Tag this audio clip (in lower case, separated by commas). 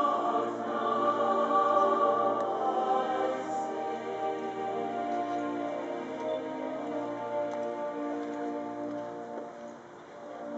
music, inside a public space